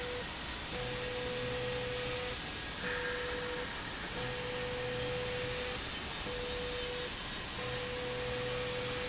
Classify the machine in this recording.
slide rail